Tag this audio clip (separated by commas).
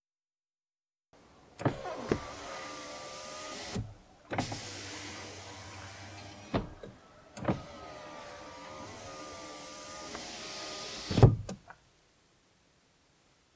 Vehicle, Motor vehicle (road), Car